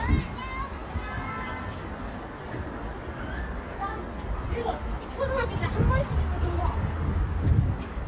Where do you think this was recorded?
in a residential area